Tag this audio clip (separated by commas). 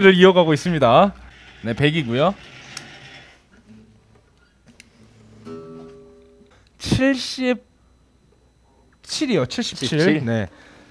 Speech